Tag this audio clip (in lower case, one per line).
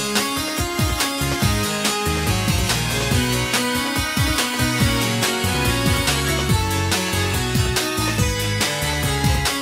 music